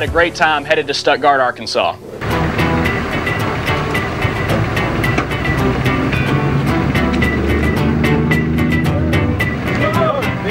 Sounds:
music, speech

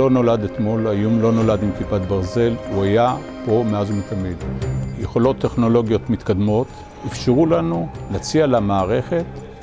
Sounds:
speech, music

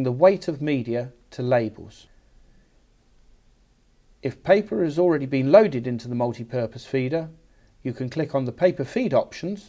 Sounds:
speech

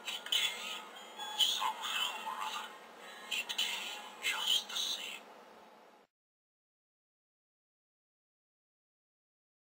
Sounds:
speech, music

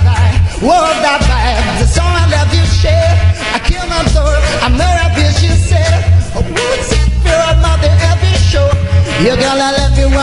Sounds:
music

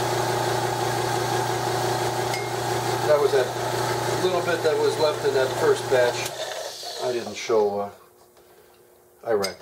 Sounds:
inside a small room, speech

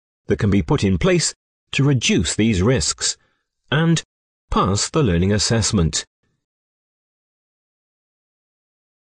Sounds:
speech, speech synthesizer

